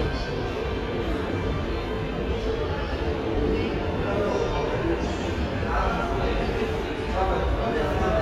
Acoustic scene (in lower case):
subway station